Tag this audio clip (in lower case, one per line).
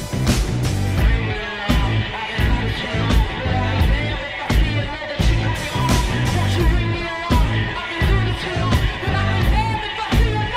music